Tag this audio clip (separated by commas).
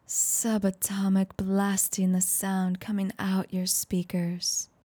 Speech, Human voice